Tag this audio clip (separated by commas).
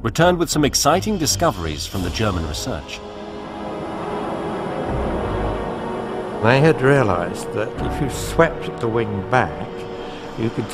Music, Speech